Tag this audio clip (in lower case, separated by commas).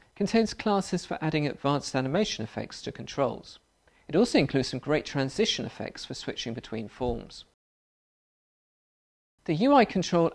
speech, inside a small room